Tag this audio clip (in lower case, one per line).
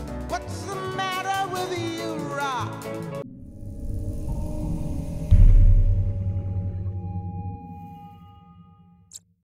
music